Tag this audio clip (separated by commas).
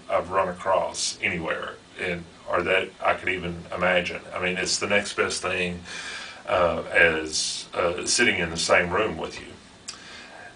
Speech